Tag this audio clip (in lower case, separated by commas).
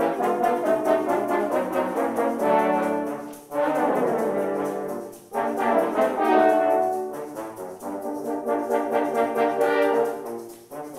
playing french horn